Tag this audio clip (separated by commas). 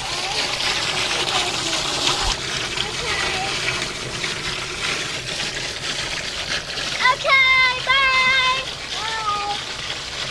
Water, Speech, Liquid